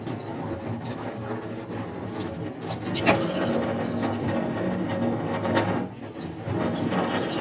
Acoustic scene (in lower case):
restroom